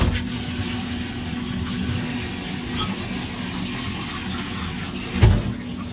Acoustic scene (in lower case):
kitchen